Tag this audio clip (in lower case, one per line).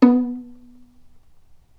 music
bowed string instrument
musical instrument